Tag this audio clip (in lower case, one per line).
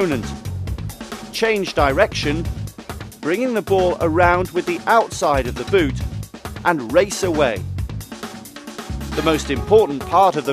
music
speech